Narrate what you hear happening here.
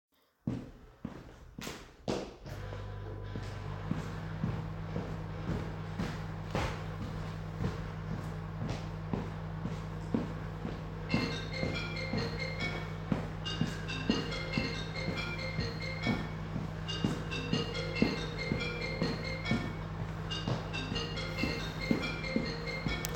The device is placed stationary during the recording. Footsteps are heard first, followed by the microwave being started. A phone starts ringing afterward, and all three sound events continue in parallel until the end of the scene.